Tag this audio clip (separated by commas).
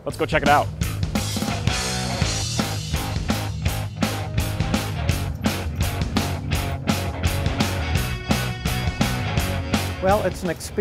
Music, Speech